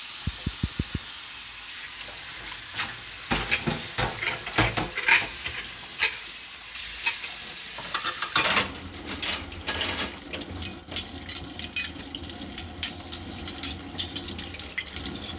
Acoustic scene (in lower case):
kitchen